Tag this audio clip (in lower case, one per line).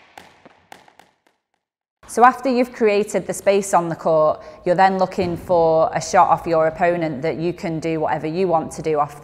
playing squash